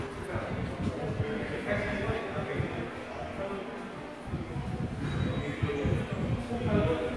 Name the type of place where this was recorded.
subway station